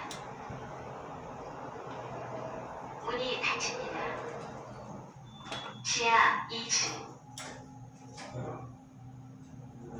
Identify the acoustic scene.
elevator